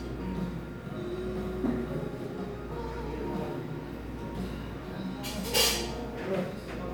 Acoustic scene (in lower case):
cafe